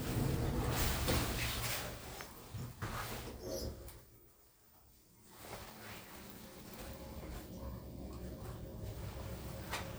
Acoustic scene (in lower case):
elevator